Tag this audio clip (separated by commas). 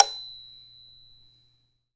Percussion, Musical instrument, Music, Marimba, Mallet percussion